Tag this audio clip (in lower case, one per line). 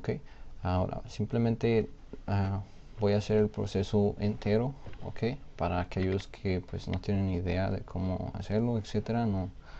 speech